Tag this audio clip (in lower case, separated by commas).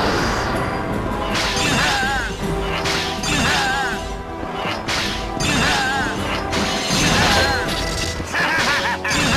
music